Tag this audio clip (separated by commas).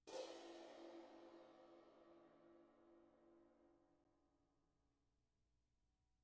Crash cymbal, Cymbal, Percussion, Musical instrument, Music